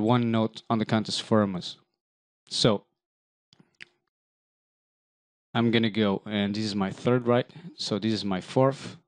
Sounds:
inside a small room, speech

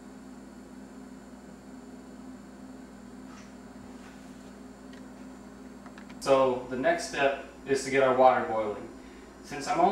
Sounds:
speech

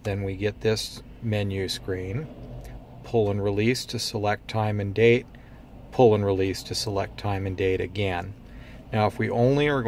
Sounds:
speech

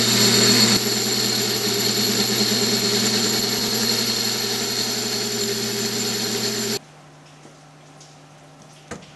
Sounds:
power tool, tools

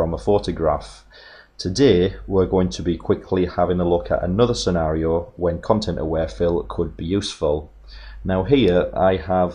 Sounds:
speech

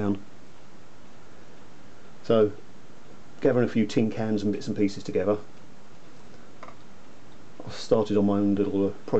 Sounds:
speech

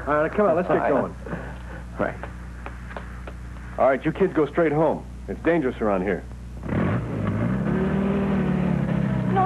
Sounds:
car passing by, speech

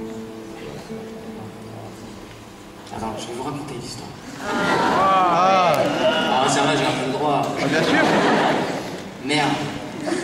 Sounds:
narration, speech, music, male speech

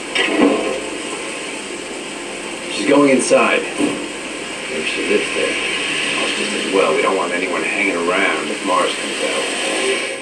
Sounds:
rain on surface, speech

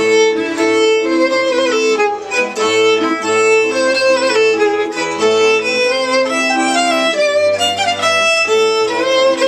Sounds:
music, fiddle, musical instrument

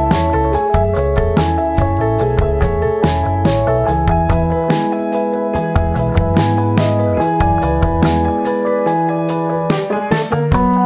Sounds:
music

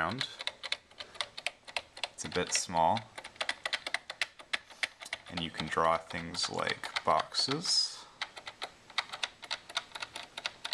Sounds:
typing, computer keyboard

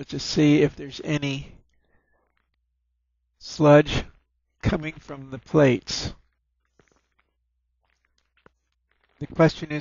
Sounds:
speech

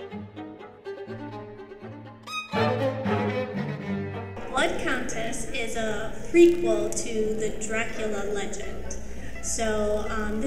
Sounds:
music, speech

